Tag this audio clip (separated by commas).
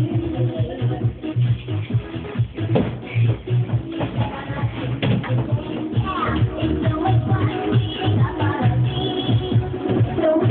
Music